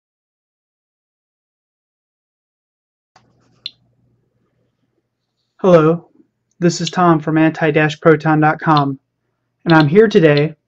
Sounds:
Speech

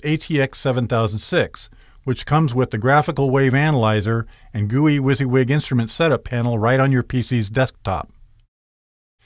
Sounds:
Speech

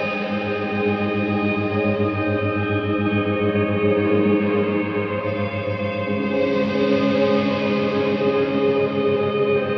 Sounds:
Music

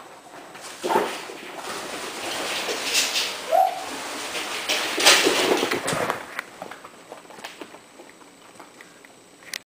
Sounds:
Animal

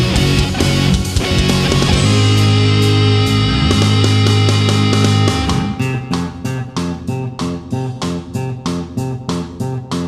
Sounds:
Bass guitar, Music, Guitar, Musical instrument, playing bass guitar

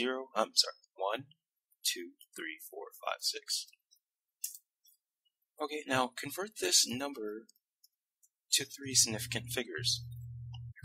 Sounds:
Speech, inside a small room

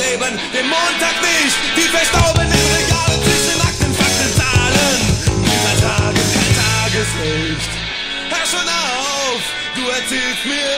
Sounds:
Punk rock, Music

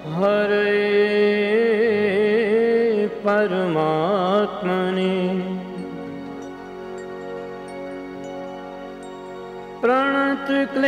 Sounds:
Carnatic music, Singing

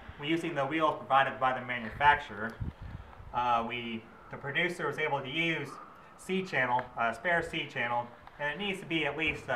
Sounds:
Speech

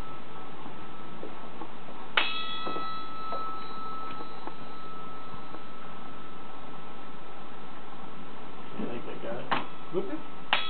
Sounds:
Speech

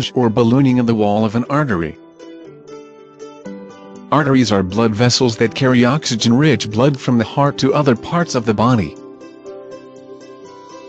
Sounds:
Music, Speech synthesizer, Speech

